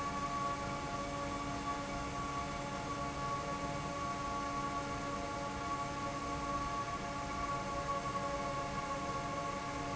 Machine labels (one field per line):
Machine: fan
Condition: normal